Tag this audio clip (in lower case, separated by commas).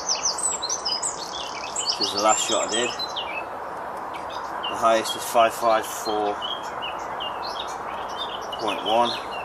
outside, rural or natural, speech